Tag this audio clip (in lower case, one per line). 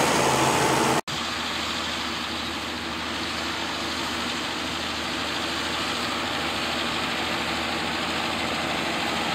vehicle